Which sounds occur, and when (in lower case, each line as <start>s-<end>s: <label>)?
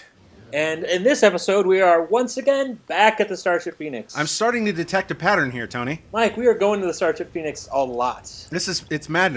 0.0s-0.5s: sound effect
0.0s-9.3s: video game sound
0.5s-2.7s: man speaking
0.5s-9.3s: conversation
2.8s-2.9s: generic impact sounds
2.9s-6.0s: man speaking
3.6s-3.8s: generic impact sounds
6.1s-9.3s: man speaking